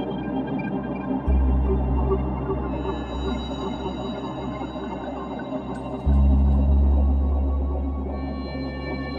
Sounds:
Music

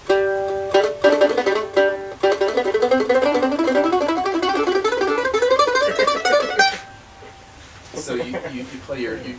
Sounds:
Speech, Music

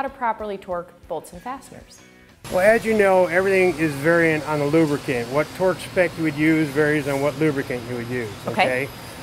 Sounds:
Music, inside a small room, inside a large room or hall, Speech

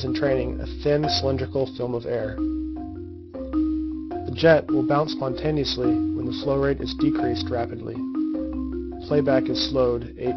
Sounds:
Speech, Music

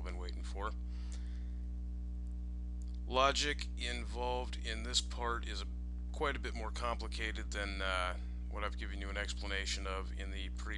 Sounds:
Speech

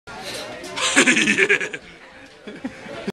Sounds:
Speech

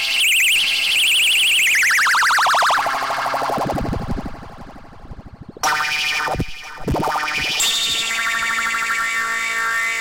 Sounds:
Synthesizer, Musical instrument, Keyboard (musical), Music

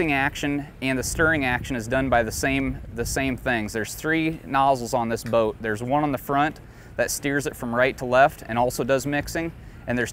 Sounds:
Speech

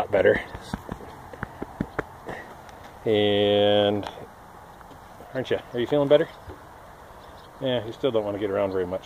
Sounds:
Animal, outside, rural or natural, Speech

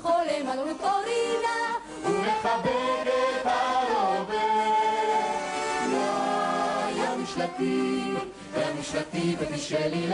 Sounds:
Music, Singing

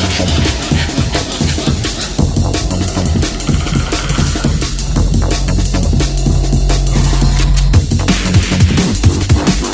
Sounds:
Drum and bass, Music, Electronic music

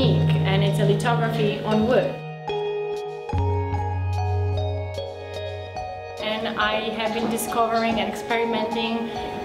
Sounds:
Music, Speech

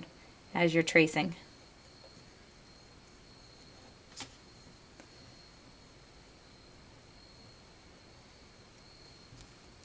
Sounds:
inside a small room, Speech

